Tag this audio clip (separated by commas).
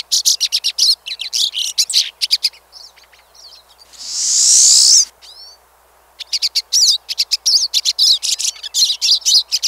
wood thrush calling